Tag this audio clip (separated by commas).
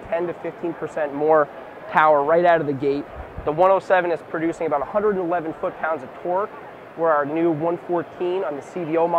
Speech